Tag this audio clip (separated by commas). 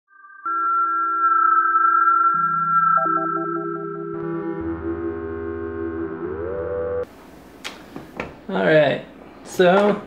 Synthesizer, Speech, Music